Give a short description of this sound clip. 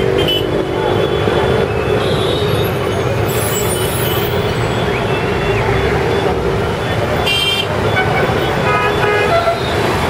A bus on a busy street with lots of traffic